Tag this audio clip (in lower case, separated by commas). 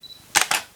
mechanisms, camera